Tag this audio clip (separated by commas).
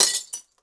Crushing, Glass